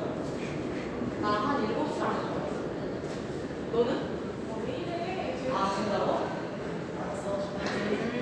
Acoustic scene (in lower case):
subway station